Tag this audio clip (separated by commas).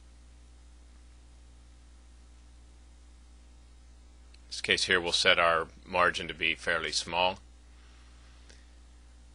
Speech